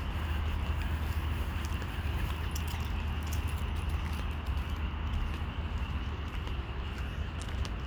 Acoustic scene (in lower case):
park